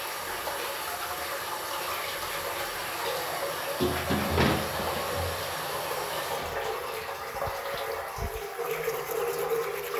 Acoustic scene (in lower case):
restroom